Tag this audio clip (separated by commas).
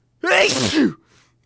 Sneeze, Respiratory sounds